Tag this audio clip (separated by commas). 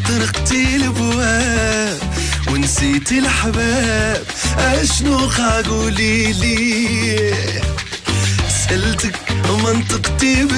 Music